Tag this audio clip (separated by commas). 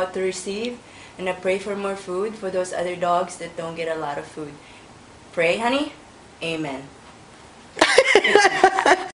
Speech